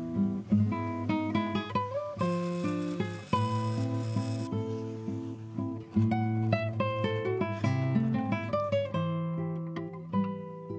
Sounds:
Plucked string instrument, Acoustic guitar, Guitar, Musical instrument, Music

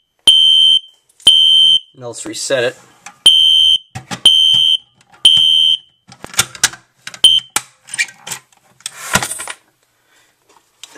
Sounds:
Fire alarm, Speech

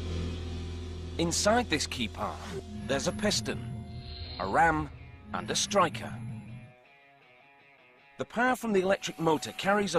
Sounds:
running electric fan

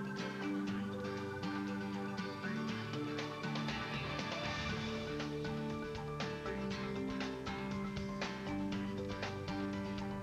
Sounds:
Music

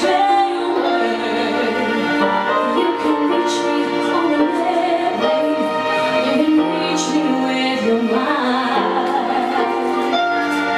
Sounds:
Female singing, Music

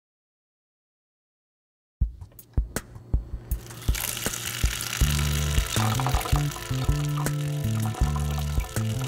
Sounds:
Music, inside a small room

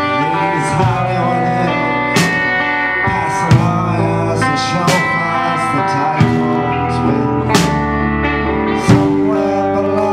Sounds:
Singing, Music

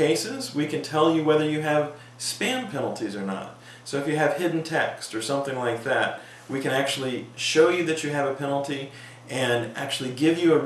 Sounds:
Speech, inside a small room

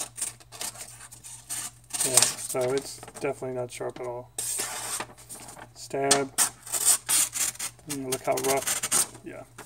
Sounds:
Tools, Speech

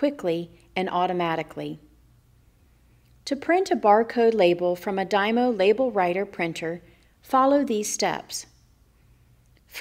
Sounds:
Speech

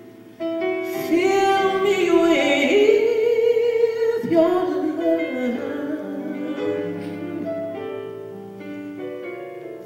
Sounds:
Music

